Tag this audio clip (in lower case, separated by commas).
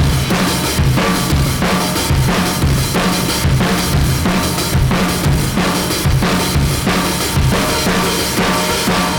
musical instrument, music, drum, percussion, drum kit